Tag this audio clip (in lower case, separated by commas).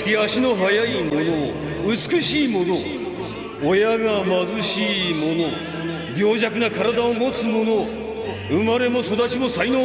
monologue, music, man speaking, speech